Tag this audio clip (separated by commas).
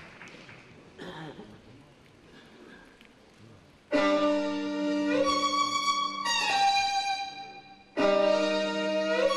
Bowed string instrument, Music, Classical music, String section, Musical instrument, Violin